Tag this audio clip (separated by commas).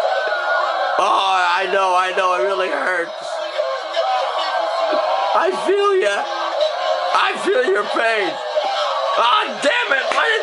Speech